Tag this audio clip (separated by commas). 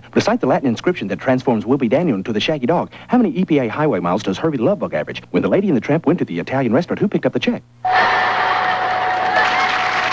Speech